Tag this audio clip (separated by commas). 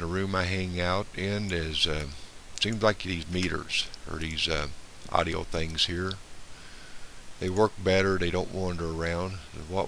Speech